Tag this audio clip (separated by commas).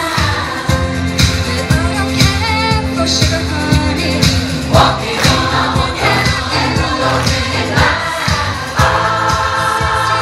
Music, Choir